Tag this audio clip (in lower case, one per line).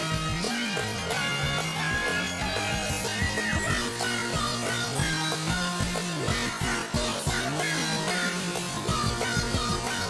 music